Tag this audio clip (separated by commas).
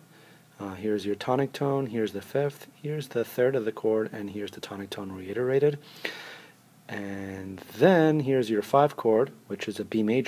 Speech